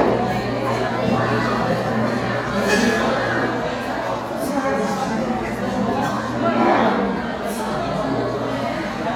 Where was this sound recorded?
in a crowded indoor space